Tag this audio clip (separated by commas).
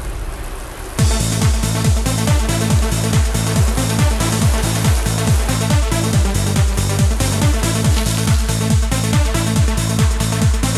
Music